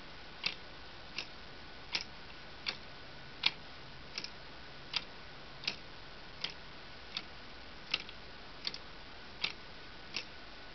A clock ticking